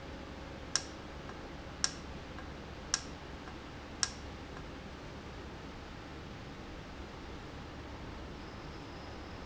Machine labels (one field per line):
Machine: valve